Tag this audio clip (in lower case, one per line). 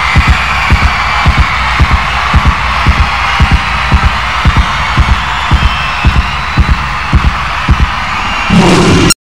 heartbeat
music